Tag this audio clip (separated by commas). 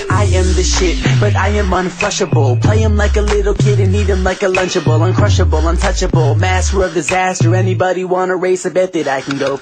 Music